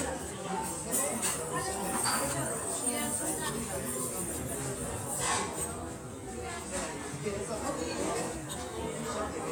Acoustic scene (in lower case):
restaurant